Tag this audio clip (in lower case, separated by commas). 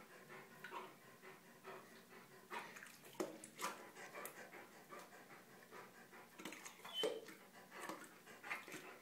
yip